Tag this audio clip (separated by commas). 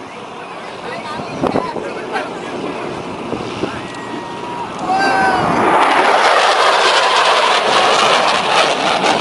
airplane flyby